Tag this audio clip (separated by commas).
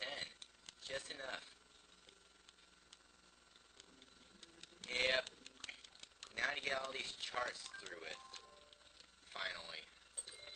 Speech